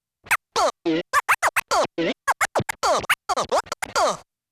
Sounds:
Musical instrument, Scratching (performance technique), Music

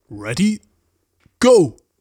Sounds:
Speech, man speaking, Human voice

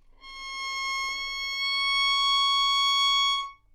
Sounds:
Music, Musical instrument, Bowed string instrument

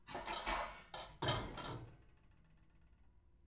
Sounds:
dishes, pots and pans, Domestic sounds

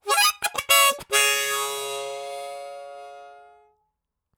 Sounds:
Harmonica, Musical instrument, Music

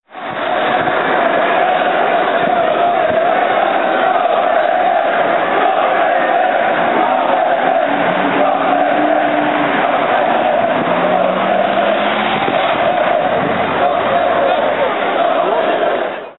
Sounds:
Crowd, Human group actions

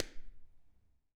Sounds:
Clapping, Hands

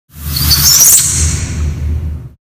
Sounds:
Squeak

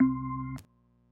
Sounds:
Organ, Music, Keyboard (musical), Musical instrument

